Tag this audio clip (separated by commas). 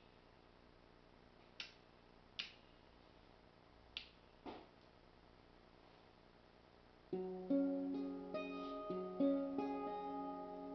Music, Musical instrument